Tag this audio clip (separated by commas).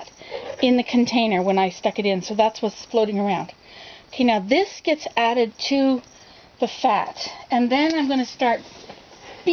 Speech